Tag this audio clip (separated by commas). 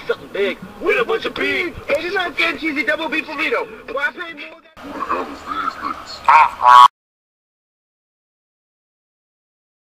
Speech